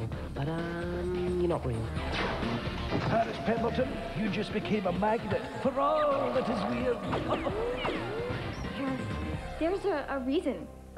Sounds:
Speech, Music

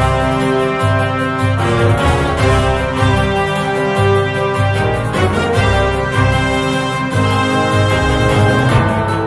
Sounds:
Background music, Music

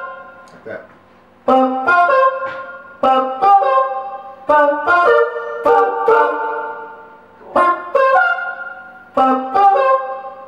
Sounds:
Guitar, inside a small room, Speech, Electric guitar, Plucked string instrument, Musical instrument, Music

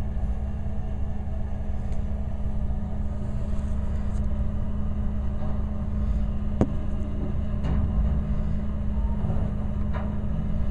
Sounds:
outside, urban or man-made, Vehicle

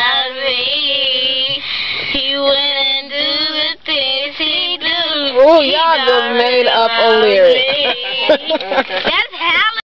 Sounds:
Female singing, Child singing, Speech

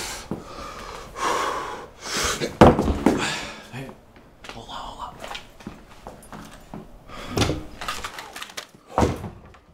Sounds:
Speech

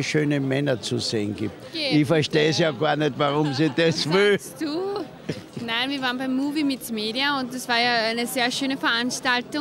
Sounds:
Speech

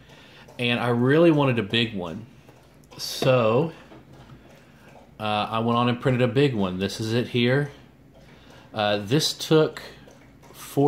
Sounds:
Speech

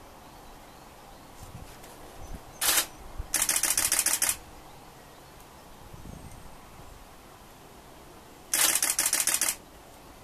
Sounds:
Bird

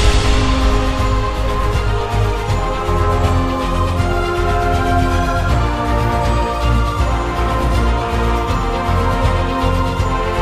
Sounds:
Theme music

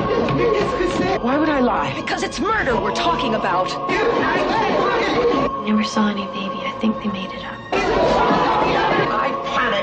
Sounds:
Speech, Music

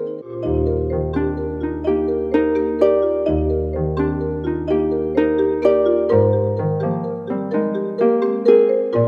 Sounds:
Musical instrument, Music, xylophone

